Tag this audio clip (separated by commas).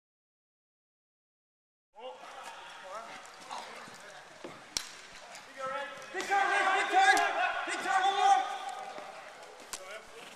Speech